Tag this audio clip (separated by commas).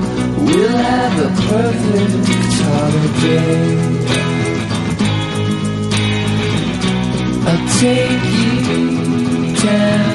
Music